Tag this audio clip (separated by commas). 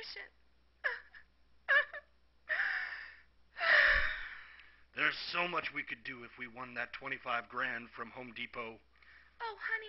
Gasp, monologue, Speech